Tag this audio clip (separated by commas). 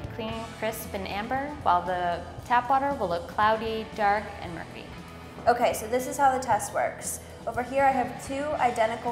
Music, Speech